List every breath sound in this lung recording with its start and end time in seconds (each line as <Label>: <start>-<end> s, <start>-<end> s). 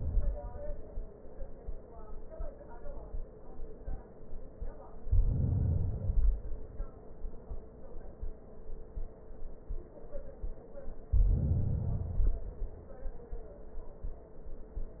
Inhalation: 4.93-6.04 s, 11.05-11.98 s
Exhalation: 6.07-7.41 s, 11.98-13.31 s